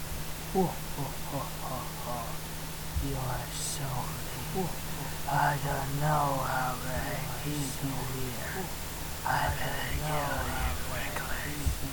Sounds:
Speech, Human voice

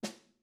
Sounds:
Drum, Music, Musical instrument, Percussion, Snare drum

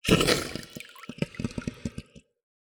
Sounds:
Water, Gurgling

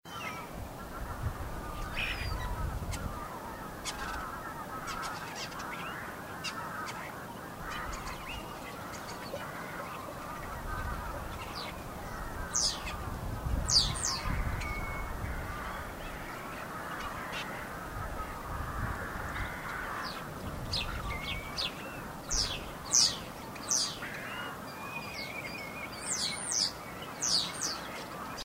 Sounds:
Wild animals, Bird, Animal, bird song

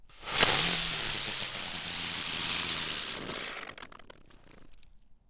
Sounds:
Explosion, Fireworks

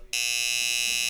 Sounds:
Domestic sounds, Doorbell, Alarm, Door

